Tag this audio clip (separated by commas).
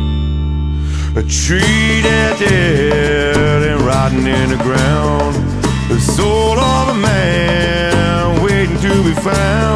Music